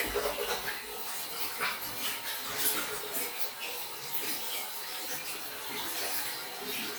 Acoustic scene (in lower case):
restroom